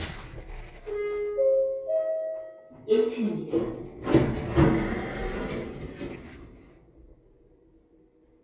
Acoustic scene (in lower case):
elevator